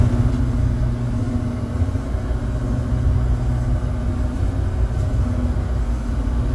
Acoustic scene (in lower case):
bus